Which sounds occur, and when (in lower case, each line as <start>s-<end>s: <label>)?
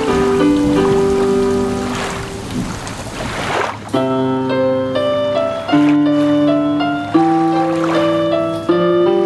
0.0s-2.7s: music
0.0s-2.8s: rain on surface
1.8s-3.9s: surf
2.8s-2.9s: tick
3.9s-9.2s: music
5.6s-9.2s: surf